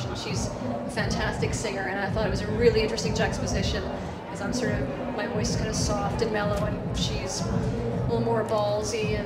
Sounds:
speech, music

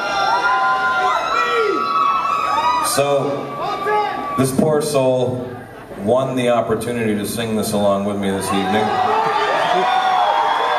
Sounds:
speech

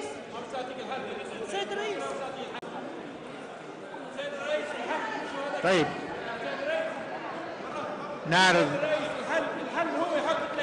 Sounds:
speech

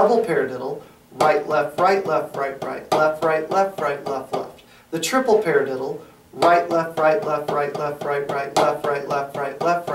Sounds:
speech, musical instrument, music, drum

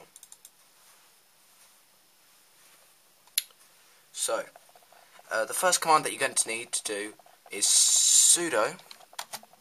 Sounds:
speech, typing

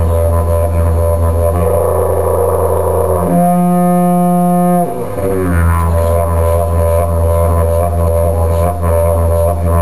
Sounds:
didgeridoo, music

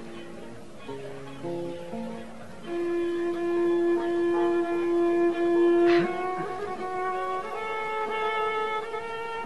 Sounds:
music

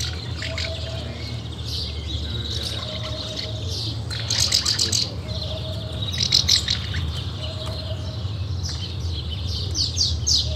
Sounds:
animal, speech

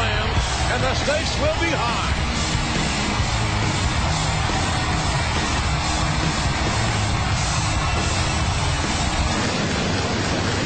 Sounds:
hubbub, speech, inside a large room or hall, music

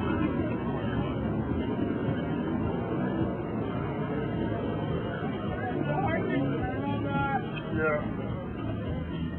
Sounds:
speech

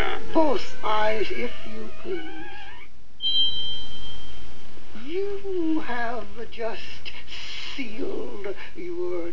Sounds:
speech, outside, rural or natural

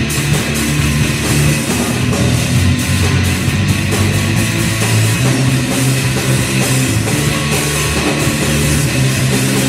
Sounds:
guitar, musical instrument, drum, music, snare drum, drum kit

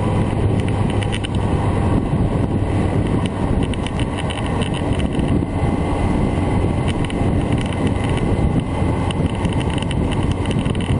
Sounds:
mechanisms

